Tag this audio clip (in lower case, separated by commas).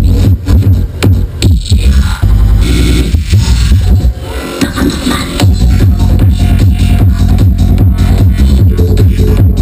music, electronic music, trance music